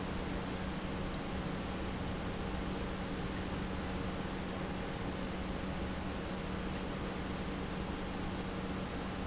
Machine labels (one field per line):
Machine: pump